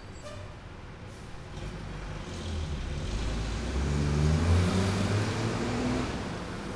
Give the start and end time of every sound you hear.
[0.00, 0.53] bus brakes
[0.00, 6.76] bus
[0.15, 0.53] bus compressor
[0.93, 1.31] bus compressor
[1.52, 6.76] bus engine accelerating
[5.36, 6.76] motorcycle
[5.36, 6.76] motorcycle engine accelerating

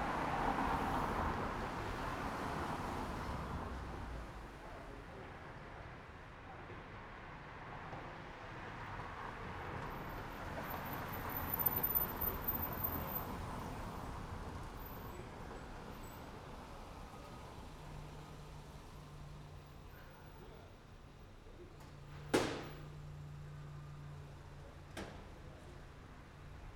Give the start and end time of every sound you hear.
[0.00, 5.86] car
[0.00, 5.86] car wheels rolling
[6.46, 19.05] car wheels rolling
[6.46, 26.76] car
[16.28, 26.76] car engine idling

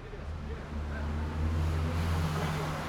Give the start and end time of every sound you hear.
[0.00, 2.89] bus
[0.00, 2.89] bus engine accelerating
[0.00, 2.89] people talking
[1.35, 2.89] car
[1.35, 2.89] car wheels rolling

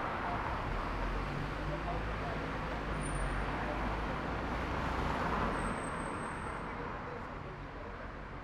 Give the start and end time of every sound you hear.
[0.00, 0.53] bus engine idling
[0.00, 8.21] bus
[0.00, 8.45] car
[0.00, 8.45] car wheels rolling
[0.00, 8.45] people talking
[0.51, 8.21] bus engine accelerating

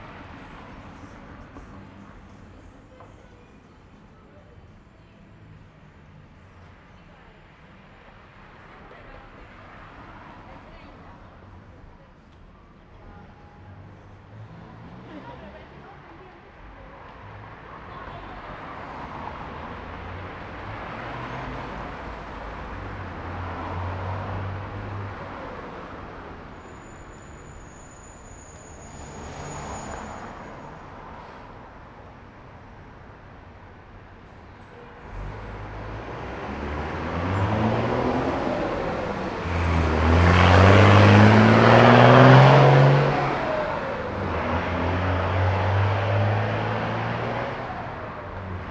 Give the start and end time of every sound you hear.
[0.00, 6.38] music
[0.00, 27.12] car
[0.00, 27.12] car wheels rolling
[6.38, 21.50] people talking
[13.17, 16.05] car engine accelerating
[20.22, 26.50] bus engine accelerating
[20.22, 48.70] bus
[26.39, 30.78] bus brakes
[28.25, 31.25] car
[28.25, 31.25] car wheels rolling
[30.72, 34.17] bus engine idling
[34.17, 34.94] bus compressor
[34.83, 48.70] bus engine accelerating
[45.50, 48.70] car
[45.50, 48.70] car wheels rolling

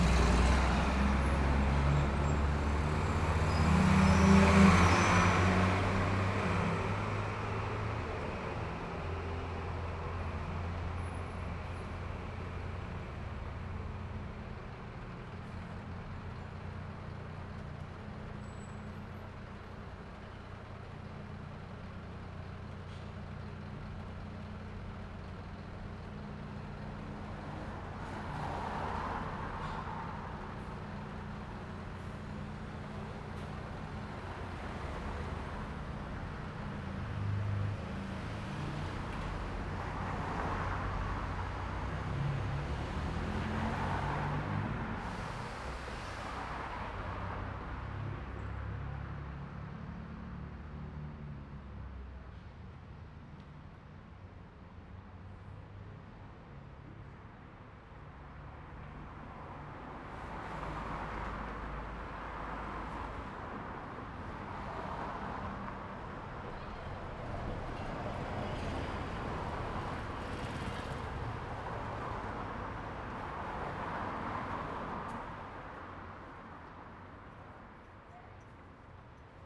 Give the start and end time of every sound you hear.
[0.00, 13.63] bus engine accelerating
[0.00, 47.80] bus
[1.00, 5.40] bus brakes
[5.69, 8.15] car
[5.69, 8.15] car wheels rolling
[9.50, 34.93] bus engine idling
[10.13, 12.10] car
[15.30, 15.77] bus compressor
[18.23, 19.80] car
[22.77, 23.17] bus compressor
[26.73, 28.90] car engine accelerating
[26.73, 32.07] car
[26.73, 32.07] car wheels rolling
[29.50, 29.93] bus compressor
[30.43, 30.86] bus compressor
[31.67, 32.20] bus compressor
[33.37, 33.63] bus compressor
[33.74, 35.66] car engine accelerating
[33.74, 42.14] car
[33.74, 42.14] car wheels rolling
[34.93, 47.80] bus engine accelerating
[37.10, 39.40] car engine accelerating
[42.86, 44.73] car engine accelerating
[42.86, 52.01] car
[42.86, 52.01] car wheels rolling
[45.00, 46.50] bus compressor
[47.97, 52.01] car engine accelerating
[58.54, 77.86] car
[58.54, 77.86] car wheels rolling
[66.40, 67.17] people talking
[67.33, 73.88] bus
[67.33, 73.88] bus wheels rolling
[70.75, 72.30] motorcycle
[70.75, 72.30] motorcycle engine idling
[77.66, 79.46] people talking

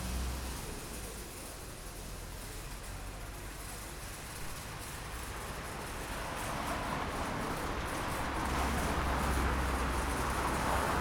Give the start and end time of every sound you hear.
[0.00, 2.25] bus
[0.00, 2.25] bus engine accelerating
[0.00, 11.01] unclassified sound
[3.77, 11.01] car
[3.77, 11.01] car wheels rolling

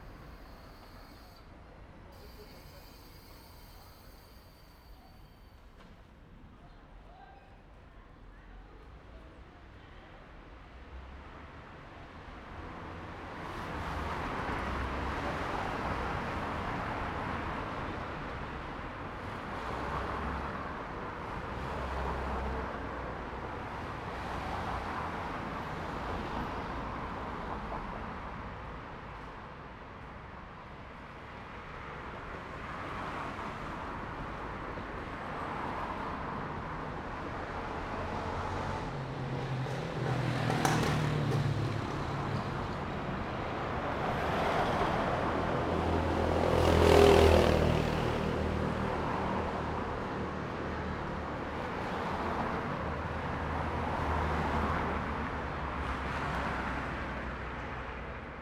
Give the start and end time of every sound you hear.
[0.00, 6.16] car
[0.00, 6.16] car wheels rolling
[0.00, 12.42] people talking
[11.88, 58.42] car
[11.88, 58.42] car wheels rolling
[37.91, 43.76] motorcycle
[37.91, 43.76] motorcycle engine accelerating
[45.08, 52.53] motorcycle
[45.08, 52.53] motorcycle engine accelerating
[53.15, 55.20] car engine accelerating
[58.17, 58.42] motorcycle
[58.17, 58.42] motorcycle engine accelerating

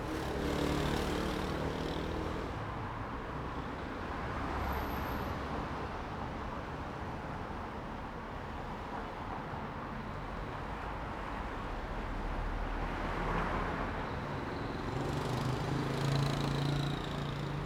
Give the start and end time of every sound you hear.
[0.00, 1.70] truck
[0.00, 1.70] truck engine accelerating
[0.00, 7.57] motorcycle
[0.00, 7.57] motorcycle engine accelerating
[1.32, 17.66] car
[1.32, 17.66] car wheels rolling
[13.45, 17.66] motorcycle
[13.45, 17.66] motorcycle engine accelerating

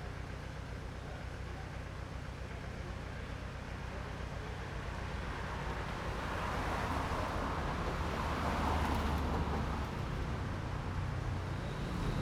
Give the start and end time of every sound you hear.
[0.00, 12.22] car
[0.00, 12.22] car engine idling
[4.89, 10.34] car wheels rolling
[11.60, 12.22] motorcycle
[11.60, 12.22] motorcycle engine accelerating

